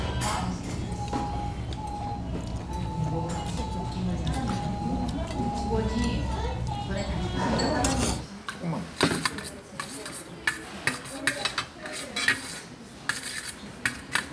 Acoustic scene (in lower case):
restaurant